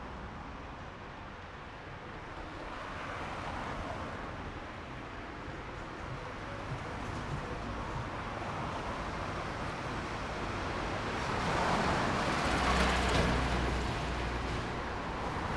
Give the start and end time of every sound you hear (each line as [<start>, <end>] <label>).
[0.00, 15.57] car
[0.00, 15.57] car wheels rolling
[7.00, 9.65] music
[12.38, 13.57] truck wheels rolling
[12.38, 15.35] truck
[12.38, 15.35] truck engine accelerating